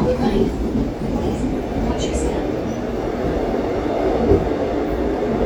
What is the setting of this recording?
subway train